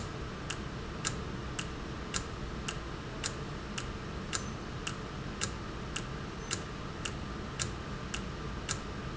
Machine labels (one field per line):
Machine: valve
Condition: normal